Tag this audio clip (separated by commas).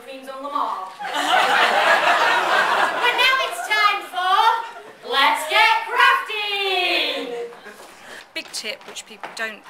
Female speech, Speech